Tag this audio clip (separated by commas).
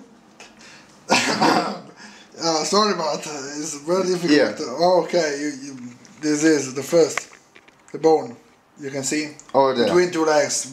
inside a small room, Speech